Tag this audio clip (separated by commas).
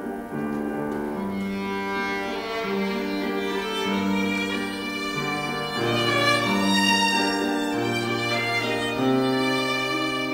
Musical instrument, Music, fiddle